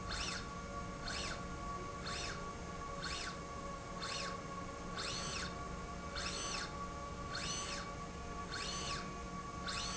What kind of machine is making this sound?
slide rail